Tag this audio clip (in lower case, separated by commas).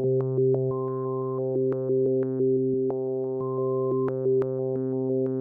musical instrument, keyboard (musical), music